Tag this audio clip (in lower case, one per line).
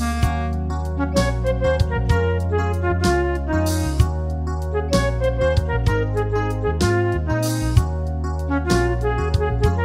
music
clarinet
musical instrument
wind instrument